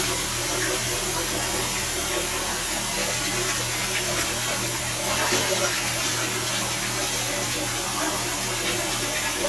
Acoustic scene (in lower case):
restroom